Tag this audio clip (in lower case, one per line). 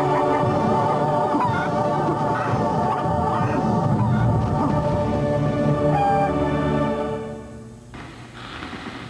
cluck
rooster
fowl